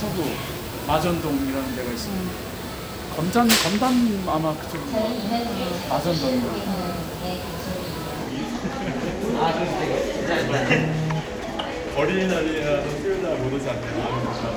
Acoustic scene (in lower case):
crowded indoor space